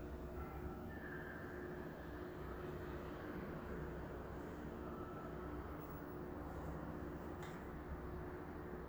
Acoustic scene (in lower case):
elevator